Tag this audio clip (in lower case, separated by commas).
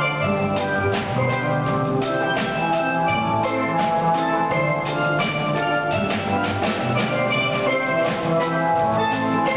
music, musical instrument